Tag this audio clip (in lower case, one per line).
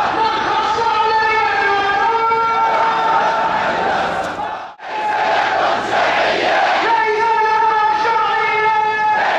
people marching